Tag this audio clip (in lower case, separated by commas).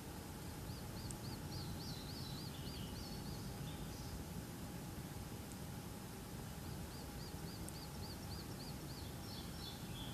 environmental noise, insect